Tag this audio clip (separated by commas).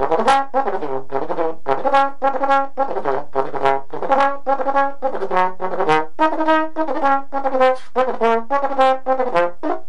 playing trombone